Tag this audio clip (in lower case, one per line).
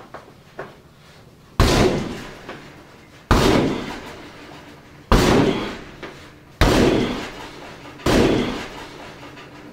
slam
door
door slamming